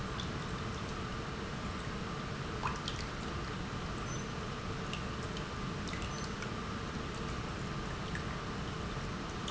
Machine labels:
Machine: pump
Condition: normal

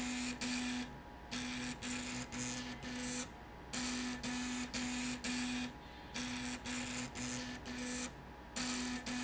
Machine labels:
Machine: slide rail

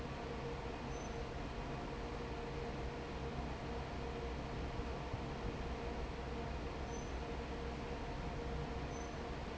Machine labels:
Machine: fan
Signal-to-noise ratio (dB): 0 dB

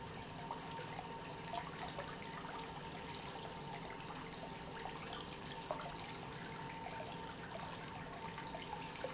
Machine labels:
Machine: pump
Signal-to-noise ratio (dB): 6 dB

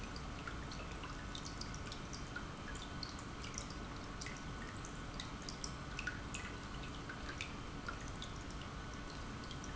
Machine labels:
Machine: pump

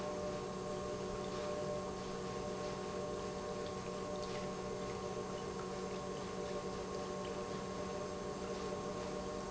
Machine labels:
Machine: pump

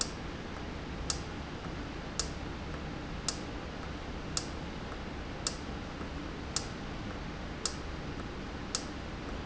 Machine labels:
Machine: valve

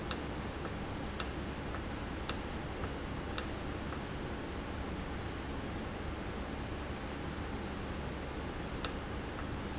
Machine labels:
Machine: valve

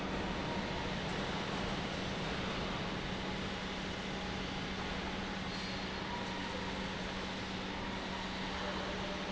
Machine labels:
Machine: pump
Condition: normal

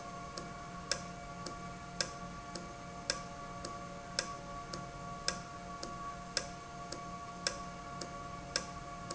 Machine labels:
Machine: valve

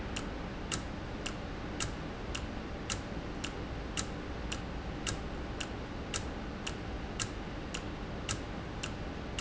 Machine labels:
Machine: valve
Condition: normal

